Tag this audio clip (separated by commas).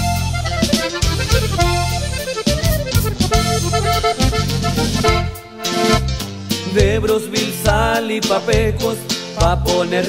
Music